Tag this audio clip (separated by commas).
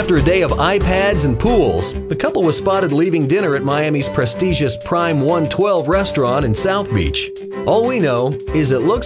Music, Speech